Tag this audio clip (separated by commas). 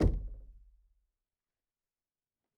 Domestic sounds, Door, Knock